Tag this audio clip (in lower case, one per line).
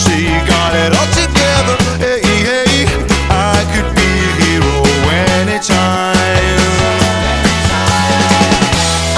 pop music
music